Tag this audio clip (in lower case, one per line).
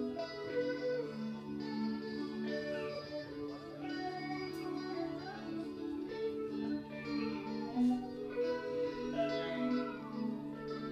music
outside, urban or man-made